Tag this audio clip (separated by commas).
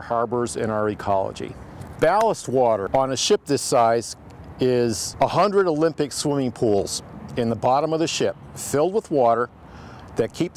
Speech